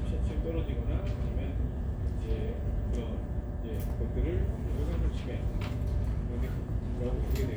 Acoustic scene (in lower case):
crowded indoor space